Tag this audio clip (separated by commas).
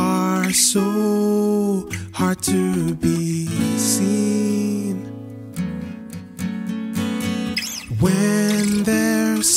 Music, Tender music